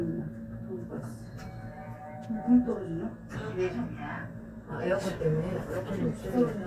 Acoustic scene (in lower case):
elevator